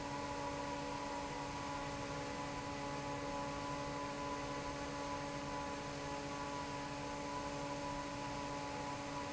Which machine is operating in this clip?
fan